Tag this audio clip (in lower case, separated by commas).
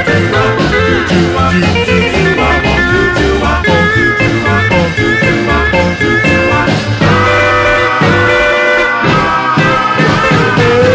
swing music, music